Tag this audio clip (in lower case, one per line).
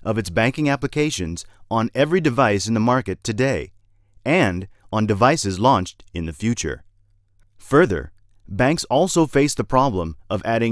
speech